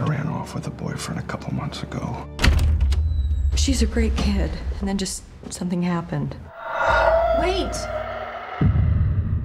People speak, various styles of music